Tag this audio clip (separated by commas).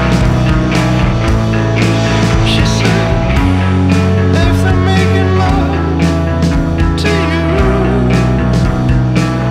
Pop music, Music